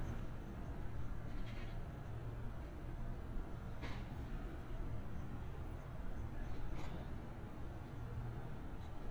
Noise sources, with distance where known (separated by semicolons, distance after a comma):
background noise